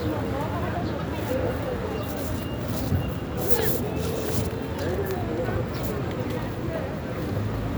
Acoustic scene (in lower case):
residential area